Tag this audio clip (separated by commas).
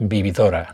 Speech, Human voice, man speaking